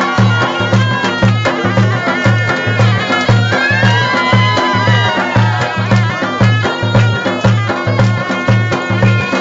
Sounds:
Music

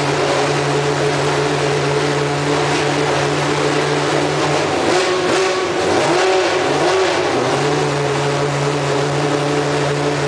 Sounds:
Vehicle, vroom

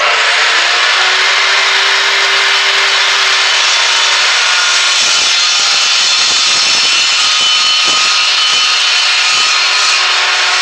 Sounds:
inside a small room

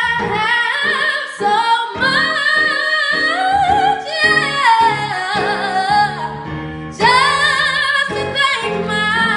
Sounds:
Female singing, Music

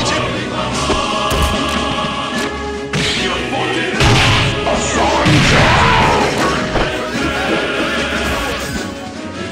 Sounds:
Speech, Music

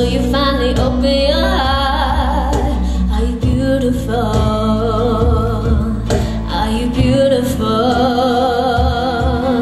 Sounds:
Music, Female singing

